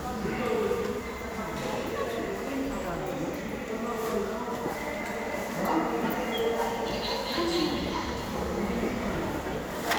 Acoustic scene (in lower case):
subway station